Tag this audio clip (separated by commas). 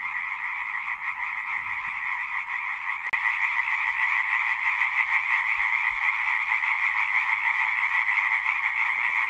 frog croaking